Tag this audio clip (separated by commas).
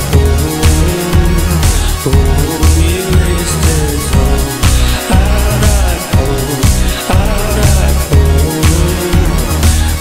Music